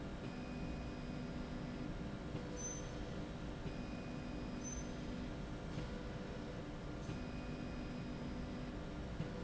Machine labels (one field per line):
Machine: slide rail